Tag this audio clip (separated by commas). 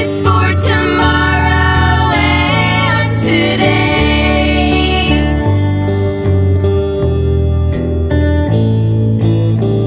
Music, inside a small room